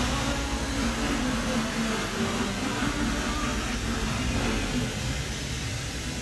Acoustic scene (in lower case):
cafe